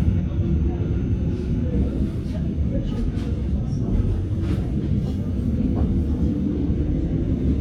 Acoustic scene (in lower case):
subway train